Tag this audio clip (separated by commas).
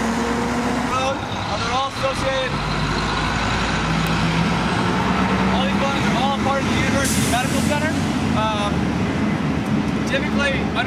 Speech, outside, rural or natural